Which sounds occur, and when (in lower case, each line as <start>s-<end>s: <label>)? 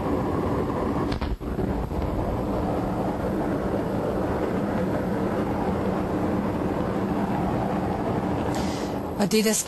0.0s-9.6s: wind
1.2s-9.1s: firecracker
1.8s-1.9s: generic impact sounds
8.5s-9.0s: breathing
9.2s-9.6s: female speech